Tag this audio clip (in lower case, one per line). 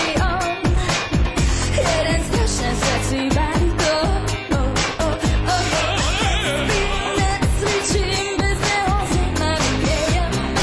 music